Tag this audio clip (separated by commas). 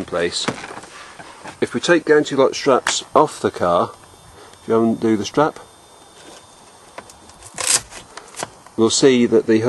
clink, Speech